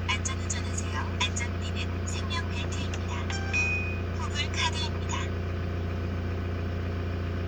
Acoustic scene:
car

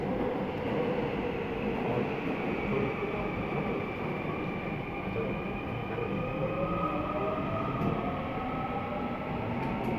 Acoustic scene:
subway train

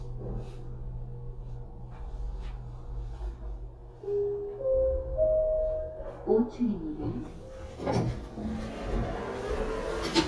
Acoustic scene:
elevator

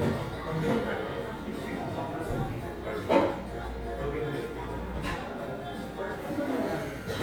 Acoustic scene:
cafe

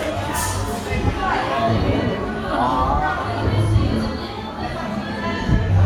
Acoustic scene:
crowded indoor space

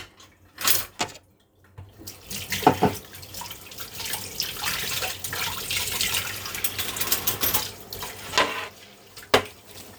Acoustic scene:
kitchen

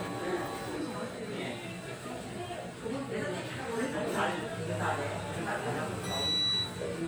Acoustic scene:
restaurant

